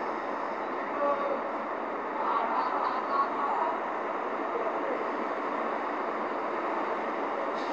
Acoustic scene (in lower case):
street